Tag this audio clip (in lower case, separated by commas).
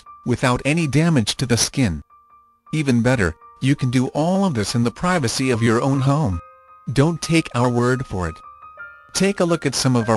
speech, music